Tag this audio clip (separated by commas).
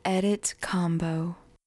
Female speech, Human voice, Speech